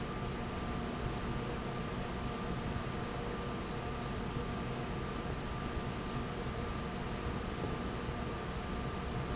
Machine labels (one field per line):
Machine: fan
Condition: abnormal